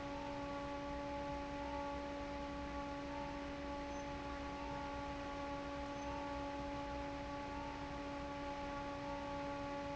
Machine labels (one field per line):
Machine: fan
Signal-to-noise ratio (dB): 6 dB